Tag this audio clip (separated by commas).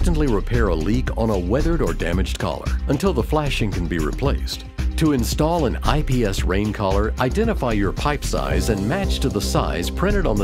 Music, Speech